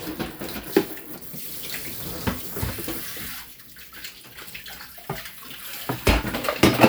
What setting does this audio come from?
kitchen